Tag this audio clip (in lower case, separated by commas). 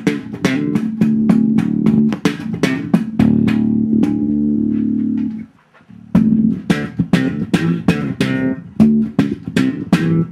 musical instrument, bass guitar, strum, music, plucked string instrument, guitar